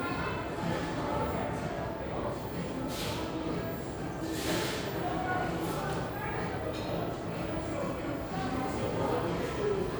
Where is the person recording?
in a cafe